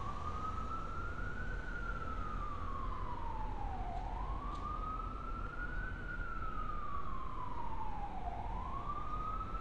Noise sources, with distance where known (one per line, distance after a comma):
siren, far